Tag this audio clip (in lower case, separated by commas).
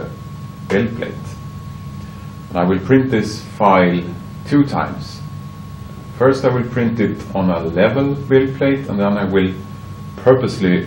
speech